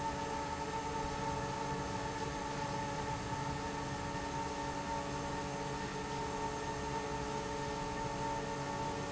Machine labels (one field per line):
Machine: fan